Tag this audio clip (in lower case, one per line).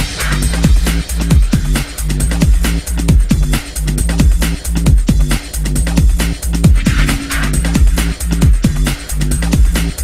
music